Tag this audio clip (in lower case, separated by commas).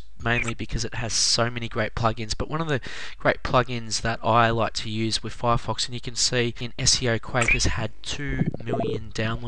speech